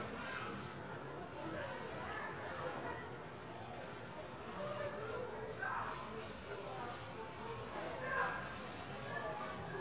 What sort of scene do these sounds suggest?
residential area